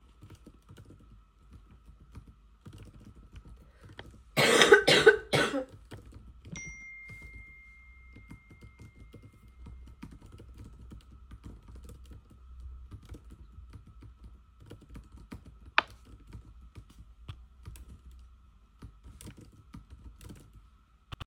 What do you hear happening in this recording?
I was writing Nodes coughed and got an notification on my phone. I continued writing Nodes.